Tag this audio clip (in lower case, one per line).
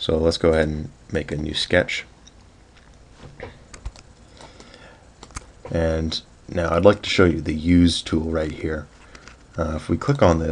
speech